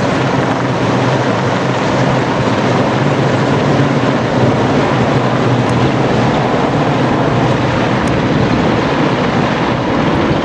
A helicopter is flying in the distance